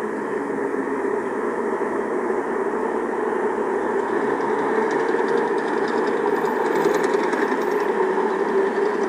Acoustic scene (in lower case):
street